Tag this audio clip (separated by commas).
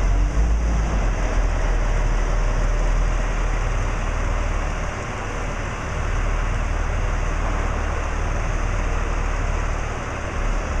Vehicle